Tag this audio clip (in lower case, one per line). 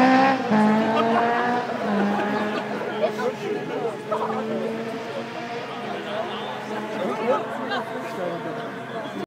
speech